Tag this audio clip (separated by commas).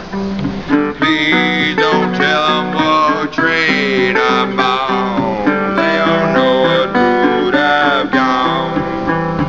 Bluegrass, Banjo, Song, Steel guitar, Musical instrument, Guitar